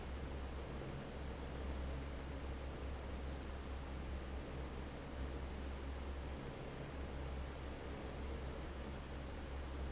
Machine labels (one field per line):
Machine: fan